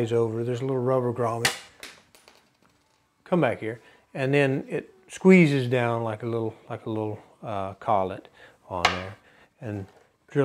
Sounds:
Speech, inside a small room

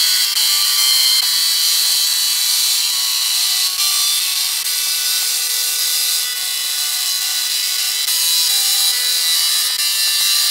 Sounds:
Printer, Music

